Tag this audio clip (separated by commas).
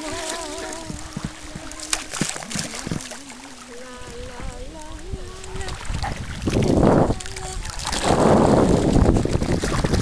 Sailboat